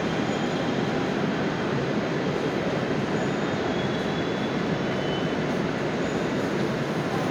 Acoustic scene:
subway station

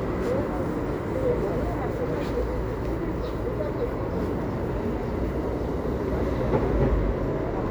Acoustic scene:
residential area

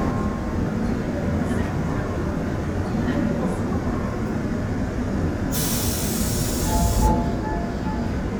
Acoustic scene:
subway train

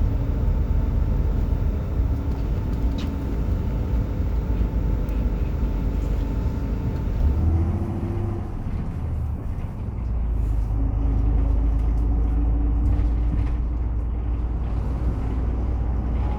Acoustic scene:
bus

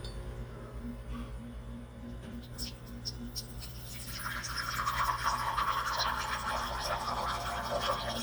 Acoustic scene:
kitchen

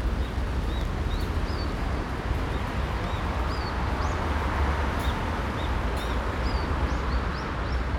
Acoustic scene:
park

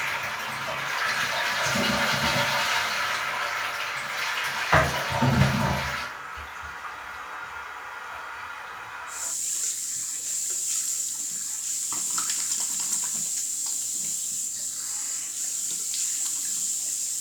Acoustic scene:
restroom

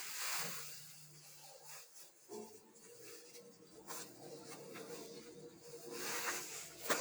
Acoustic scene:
elevator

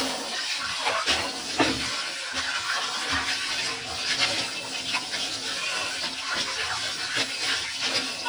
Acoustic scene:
kitchen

